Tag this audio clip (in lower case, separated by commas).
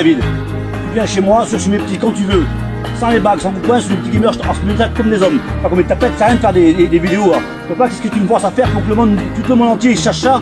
music, speech